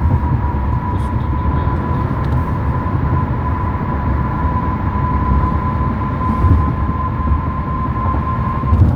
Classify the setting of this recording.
car